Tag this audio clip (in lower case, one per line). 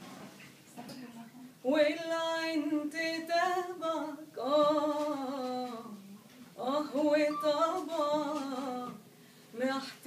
female singing